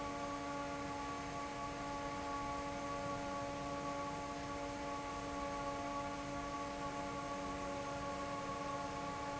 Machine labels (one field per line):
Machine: fan